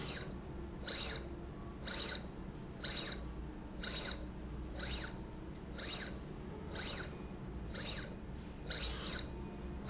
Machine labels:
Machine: slide rail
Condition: abnormal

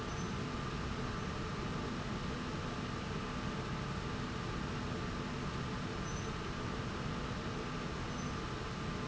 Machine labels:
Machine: slide rail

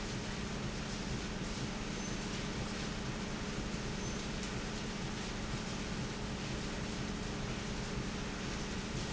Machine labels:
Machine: pump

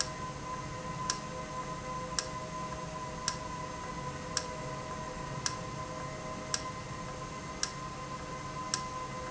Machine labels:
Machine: valve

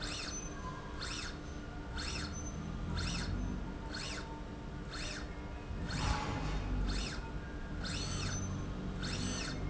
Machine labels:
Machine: slide rail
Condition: normal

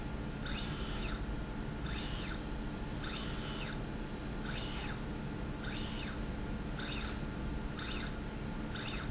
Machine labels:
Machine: slide rail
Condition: normal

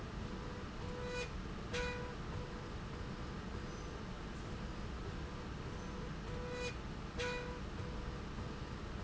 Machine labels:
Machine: slide rail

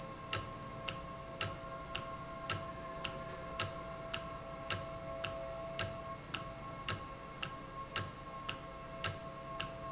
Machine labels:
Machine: valve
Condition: normal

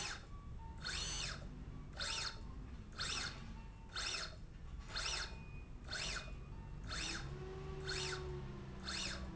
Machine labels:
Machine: slide rail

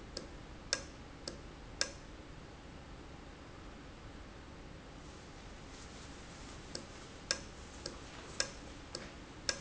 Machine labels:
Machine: valve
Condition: normal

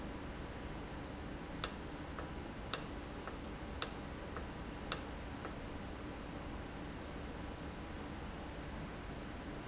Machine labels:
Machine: valve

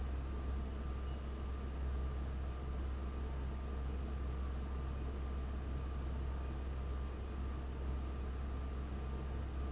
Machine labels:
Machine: fan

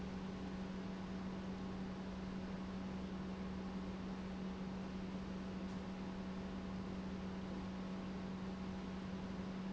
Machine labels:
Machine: pump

